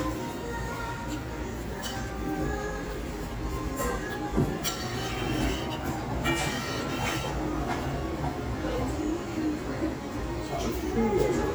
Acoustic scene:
restaurant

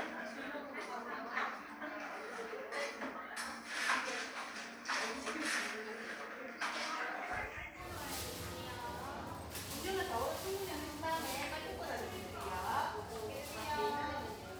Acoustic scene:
cafe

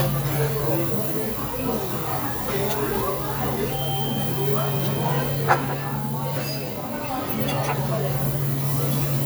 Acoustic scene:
restaurant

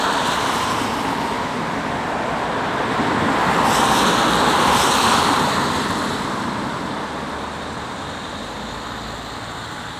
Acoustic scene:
street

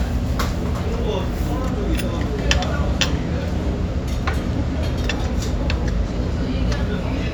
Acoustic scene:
restaurant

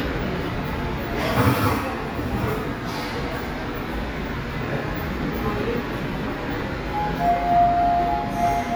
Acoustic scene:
subway station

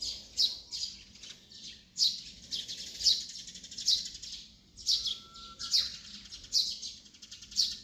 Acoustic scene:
park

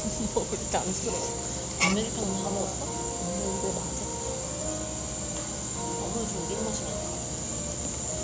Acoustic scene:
cafe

